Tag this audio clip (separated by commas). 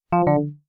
Telephone, Alarm